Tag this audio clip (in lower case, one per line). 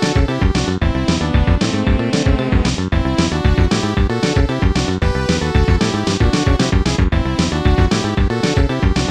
music